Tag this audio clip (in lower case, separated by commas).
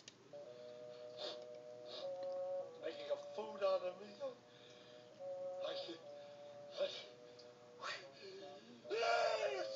sneeze, music, speech